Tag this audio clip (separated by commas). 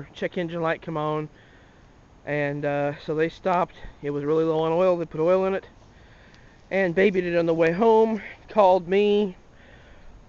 Speech